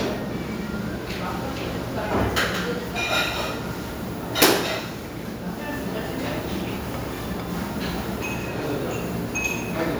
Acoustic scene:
restaurant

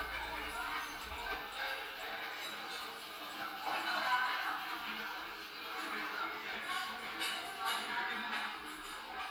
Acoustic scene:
crowded indoor space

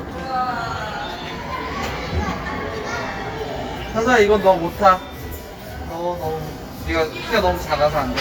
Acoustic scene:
crowded indoor space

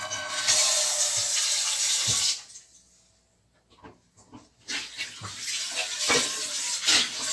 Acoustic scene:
kitchen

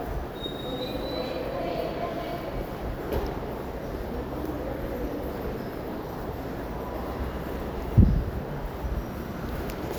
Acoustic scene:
subway station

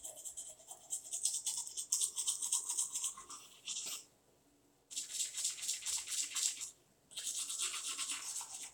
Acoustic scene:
restroom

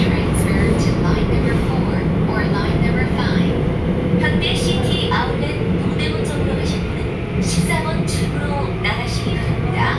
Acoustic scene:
subway train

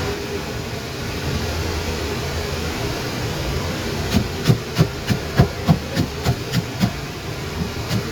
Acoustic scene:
kitchen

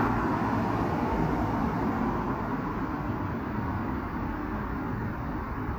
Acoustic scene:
street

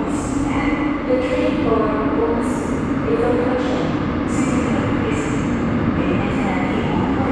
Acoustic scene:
subway station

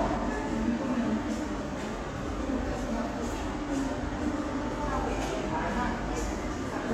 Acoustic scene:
subway station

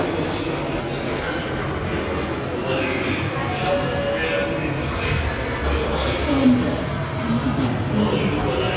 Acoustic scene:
subway station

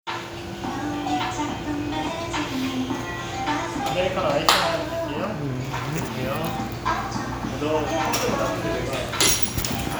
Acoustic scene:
cafe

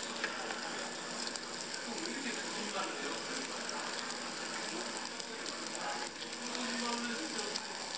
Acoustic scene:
restaurant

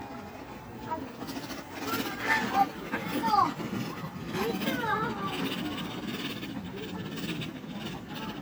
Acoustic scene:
park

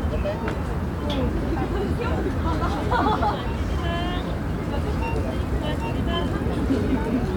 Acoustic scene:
residential area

